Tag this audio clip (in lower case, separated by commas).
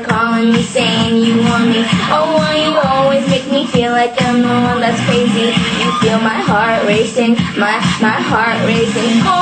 female singing, music